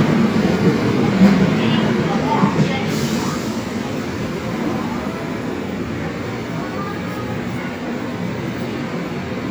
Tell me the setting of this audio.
subway station